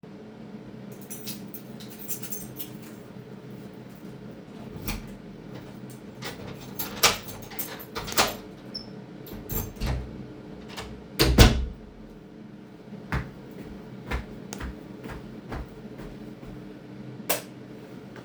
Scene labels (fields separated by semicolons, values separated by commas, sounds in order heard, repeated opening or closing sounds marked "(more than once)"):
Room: bedroom; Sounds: keys, door, footsteps, light switch